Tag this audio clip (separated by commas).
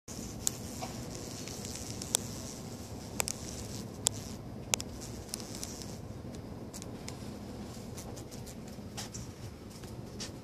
bee or wasp, etc. buzzing